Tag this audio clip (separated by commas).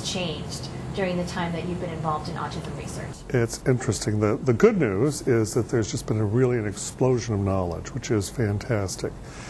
Speech